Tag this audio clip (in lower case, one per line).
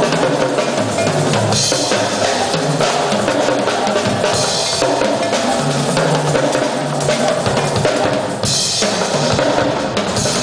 drum
rimshot
percussion
drum kit
drum roll
snare drum
bass drum